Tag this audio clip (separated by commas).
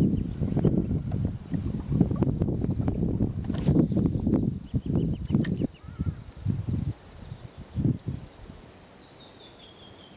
Wind, Wind noise (microphone)